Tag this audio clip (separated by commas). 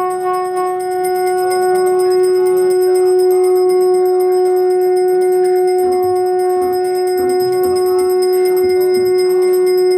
Bell, Music, outside, urban or man-made